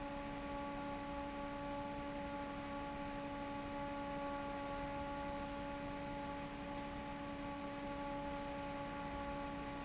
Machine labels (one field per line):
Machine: fan